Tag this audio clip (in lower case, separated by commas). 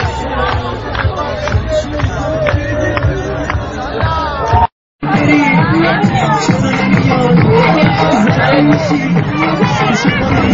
funk, music, speech